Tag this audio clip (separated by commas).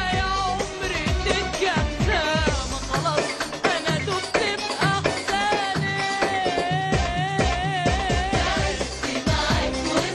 Music of Asia, Music